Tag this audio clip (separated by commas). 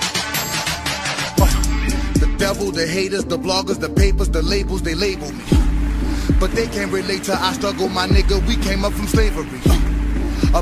Electronica